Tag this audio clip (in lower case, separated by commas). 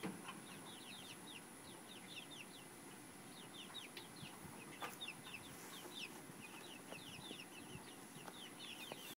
animal